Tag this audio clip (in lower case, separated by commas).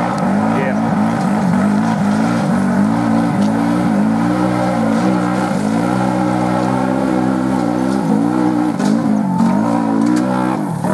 race car, speech, vehicle